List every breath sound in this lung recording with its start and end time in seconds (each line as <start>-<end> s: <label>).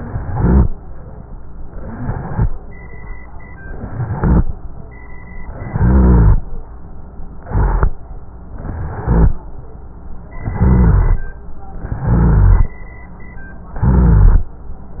0.00-0.67 s: inhalation
0.00-0.67 s: rhonchi
1.76-2.43 s: inhalation
1.76-2.43 s: rhonchi
3.76-4.42 s: inhalation
3.76-4.42 s: rhonchi
5.52-6.42 s: inhalation
5.52-6.42 s: rhonchi
7.42-7.89 s: inhalation
7.42-7.89 s: rhonchi
8.54-9.32 s: inhalation
8.54-9.32 s: rhonchi
10.40-11.29 s: inhalation
10.40-11.29 s: rhonchi
11.86-12.75 s: inhalation
11.86-12.75 s: rhonchi
13.76-14.54 s: inhalation
13.76-14.54 s: rhonchi